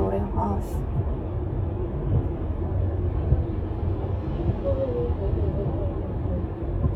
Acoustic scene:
car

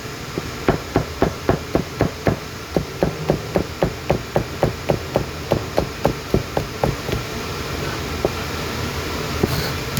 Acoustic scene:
kitchen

